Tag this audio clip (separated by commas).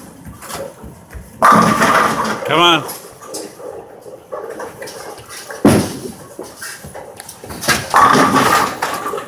striking bowling